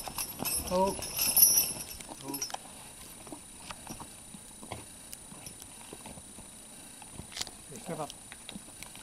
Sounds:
animal
horse
clip-clop
speech

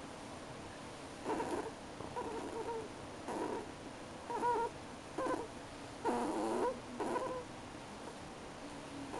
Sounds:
domestic animals
animal

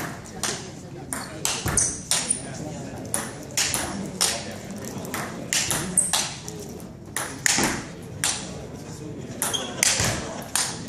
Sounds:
speech

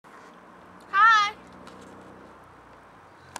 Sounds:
speech

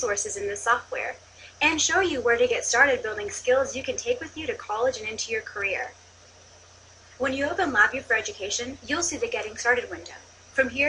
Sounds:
speech

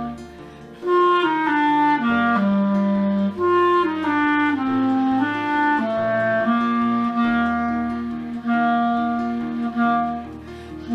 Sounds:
woodwind instrument

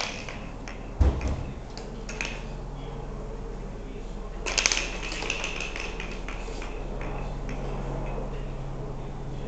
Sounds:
speech
inside a small room

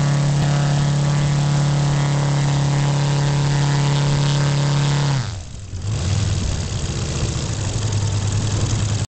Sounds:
vehicle
idling
revving
engine

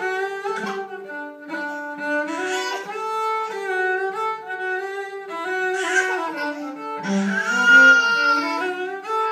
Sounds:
cello
music
bowed string instrument
musical instrument

